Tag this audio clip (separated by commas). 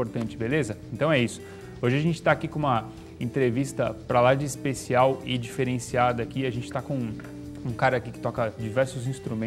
Music, Speech